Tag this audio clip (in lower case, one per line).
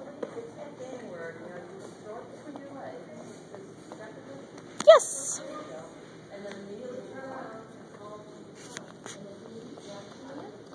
speech